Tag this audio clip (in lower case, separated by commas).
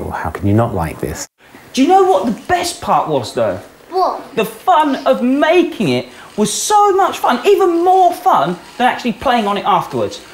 conversation, speech